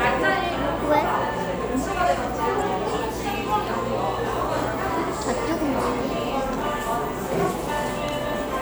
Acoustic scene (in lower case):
cafe